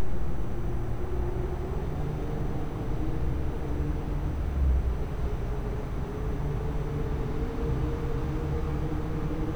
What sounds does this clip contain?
engine of unclear size